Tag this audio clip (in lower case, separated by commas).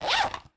zipper (clothing), domestic sounds